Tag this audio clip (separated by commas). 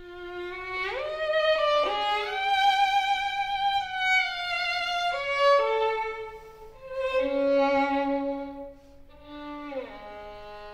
Musical instrument, Music, Violin